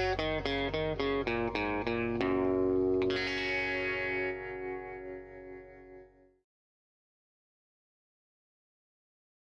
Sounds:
music

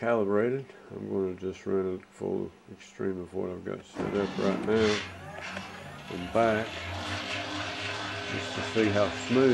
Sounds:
speech

